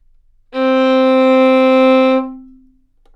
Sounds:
Bowed string instrument, Music, Musical instrument

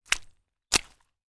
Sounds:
Walk

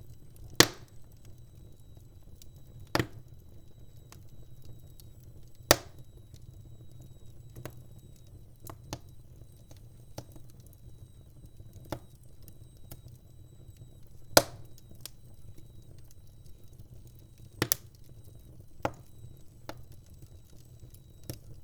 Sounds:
Fire

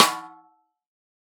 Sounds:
Musical instrument, Snare drum, Music, Drum, Percussion

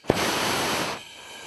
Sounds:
Fire

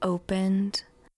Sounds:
woman speaking, Human voice, Speech

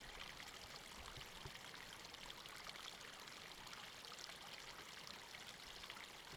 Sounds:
Stream, Water

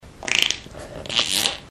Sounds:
Fart

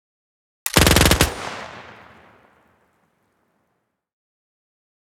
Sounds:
Gunshot, Explosion

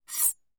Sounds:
Cutlery, Domestic sounds

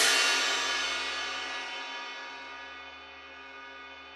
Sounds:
Cymbal, Musical instrument, Crash cymbal, Percussion, Music

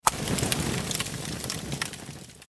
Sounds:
Fire

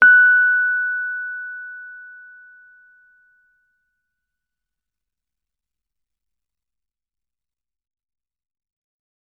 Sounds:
Music, Musical instrument, Keyboard (musical), Piano

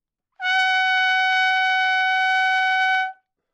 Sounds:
Musical instrument, Music, Brass instrument, Trumpet

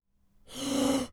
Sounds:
Breathing, Respiratory sounds

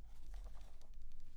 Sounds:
Wind

